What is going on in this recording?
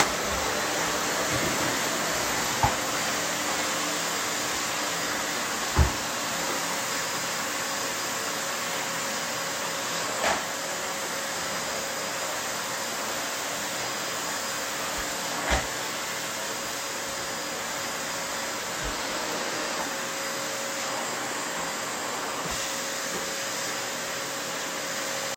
I started the vacuum cleaner and moved it across the floor while cleaning the room. The vacuum cleaner continued running for several seconds before I turned it off.